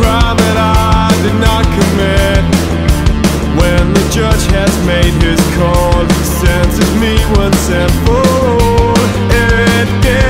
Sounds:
Music

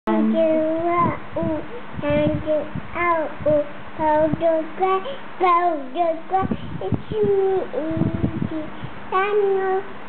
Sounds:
kid speaking

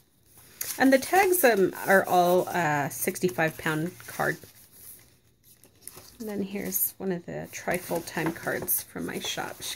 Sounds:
Crumpling, Speech

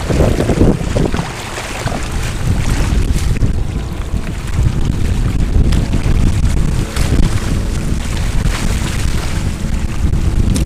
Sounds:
Wind noise (microphone), Boat, Wind, sailing ship

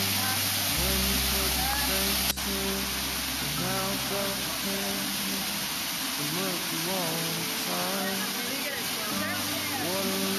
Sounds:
Stream

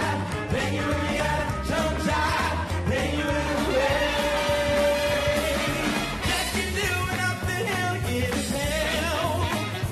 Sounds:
Music, Choir

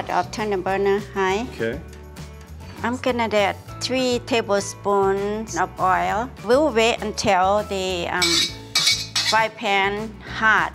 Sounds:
Stir

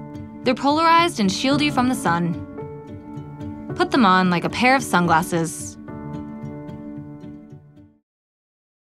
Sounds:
Music, Speech

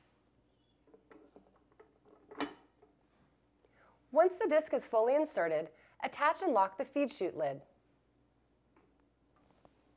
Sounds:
Speech

